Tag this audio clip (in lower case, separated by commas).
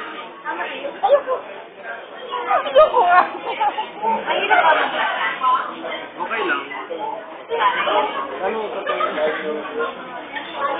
speech, inside a large room or hall